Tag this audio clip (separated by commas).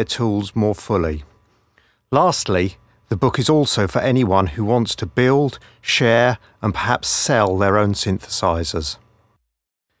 Speech